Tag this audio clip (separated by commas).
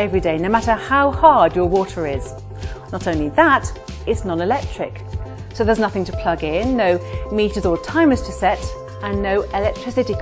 Speech